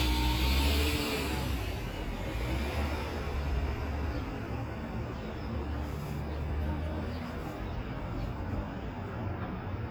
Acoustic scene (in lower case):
street